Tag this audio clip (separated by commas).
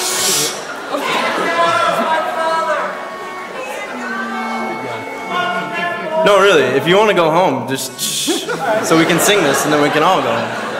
man speaking, Speech